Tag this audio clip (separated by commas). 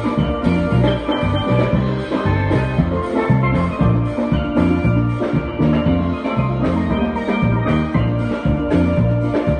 playing steelpan